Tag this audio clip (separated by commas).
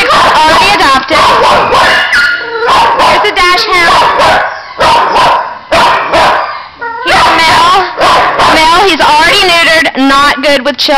Speech, Dog, Animal